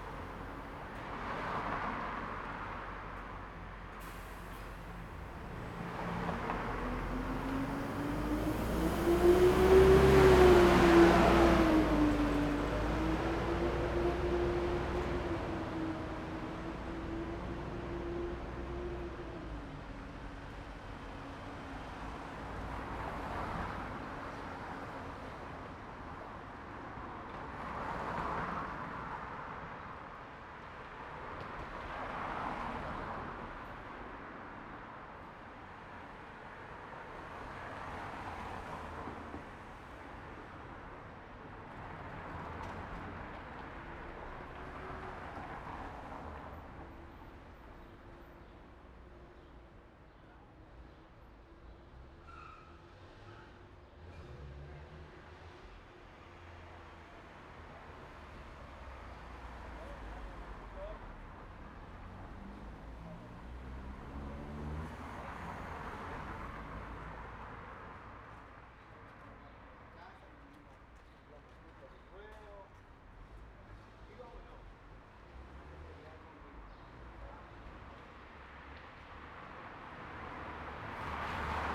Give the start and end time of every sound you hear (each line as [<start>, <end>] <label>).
[0.00, 15.43] car
[0.00, 15.43] car wheels rolling
[0.00, 21.60] bus
[3.88, 5.01] bus compressor
[5.05, 21.60] bus engine accelerating
[18.31, 21.98] car engine idling
[18.31, 47.11] car
[22.12, 47.11] car wheels rolling
[51.91, 57.02] car engine accelerating
[51.91, 70.15] car
[56.71, 70.15] car wheels rolling
[58.90, 61.01] people talking
[62.02, 65.20] car engine accelerating
[64.95, 78.75] people talking
[75.91, 77.13] car engine accelerating
[75.91, 81.75] car
[75.91, 81.75] car wheels rolling